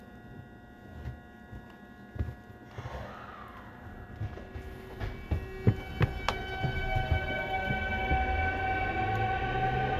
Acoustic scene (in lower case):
subway station